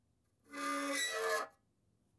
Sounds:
Squeak

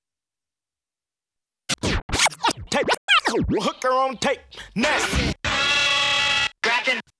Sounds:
Musical instrument, Music, Scratching (performance technique), Singing, Human voice

